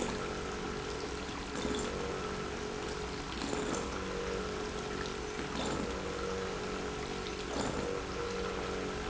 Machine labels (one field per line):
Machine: pump